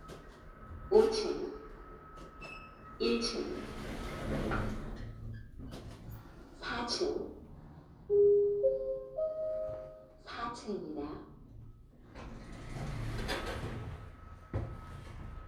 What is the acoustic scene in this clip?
elevator